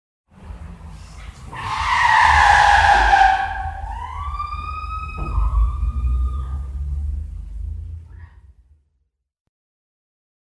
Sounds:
Car, Motor vehicle (road), Vehicle

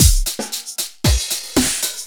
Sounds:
Drum kit, Percussion, Musical instrument, Music

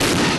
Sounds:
Explosion

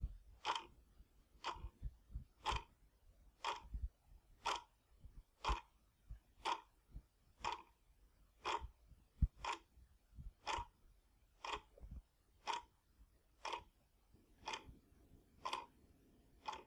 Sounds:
Tick-tock, Clock, Mechanisms

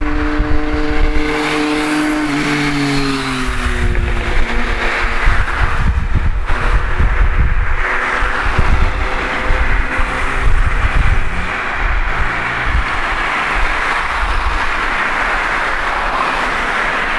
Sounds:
Vehicle, Motor vehicle (road), Traffic noise

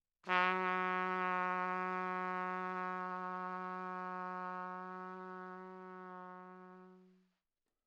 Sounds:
Brass instrument, Musical instrument, Trumpet, Music

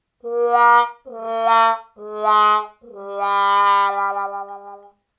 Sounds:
Music, Brass instrument, Musical instrument

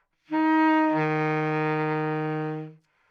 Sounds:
Wind instrument, Music, Musical instrument

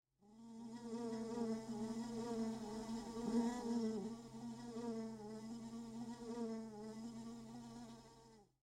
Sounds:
Animal, Insect, Wild animals, Buzz

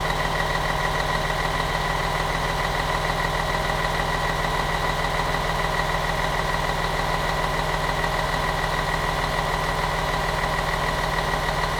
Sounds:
Bus, Vehicle, Motor vehicle (road)

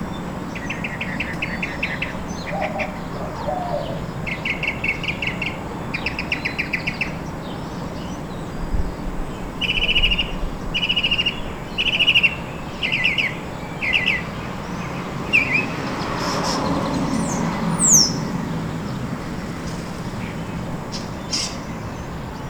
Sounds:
Wild animals, Animal, Bird, Vehicle, roadway noise, Motor vehicle (road)

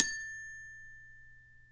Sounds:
xylophone, Musical instrument, Music, Mallet percussion, Percussion

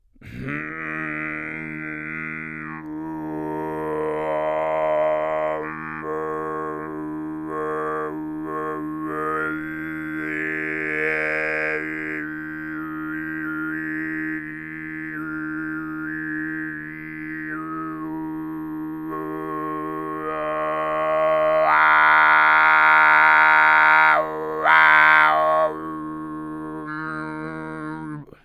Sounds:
Singing, Human voice

